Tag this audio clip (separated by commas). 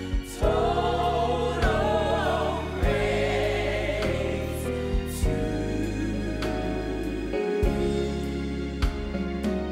Choir, Gospel music, Music, Christmas music, Singing